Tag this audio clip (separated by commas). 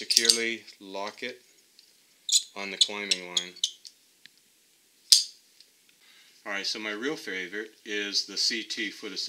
Speech